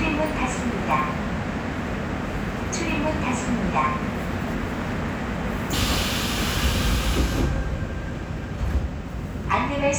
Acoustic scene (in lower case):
subway train